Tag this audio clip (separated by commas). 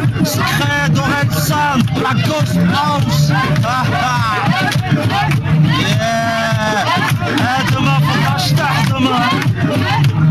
Music, Speech